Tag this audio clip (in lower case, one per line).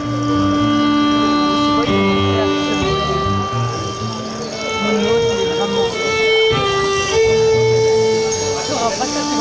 fiddle
music
musical instrument